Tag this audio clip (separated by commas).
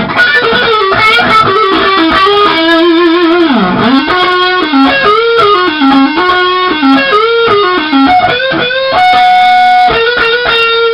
Plucked string instrument, Musical instrument, Rock music, Music, Tapping (guitar technique), Guitar